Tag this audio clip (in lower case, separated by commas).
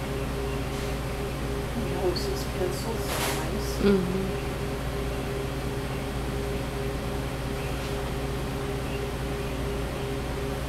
speech